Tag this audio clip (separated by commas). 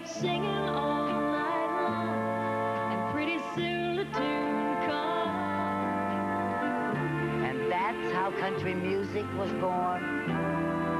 Music, Speech